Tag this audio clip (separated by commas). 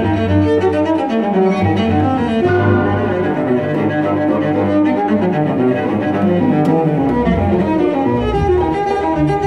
Music, Cello, Musical instrument, Double bass, Classical music, Bowed string instrument, fiddle